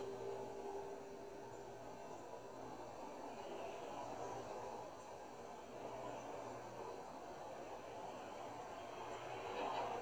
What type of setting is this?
car